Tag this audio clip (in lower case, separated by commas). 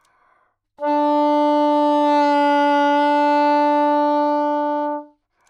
music, woodwind instrument, musical instrument